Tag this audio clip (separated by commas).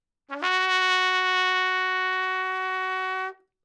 Brass instrument, Trumpet, Music, Musical instrument